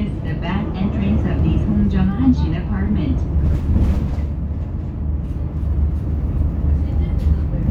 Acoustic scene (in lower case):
bus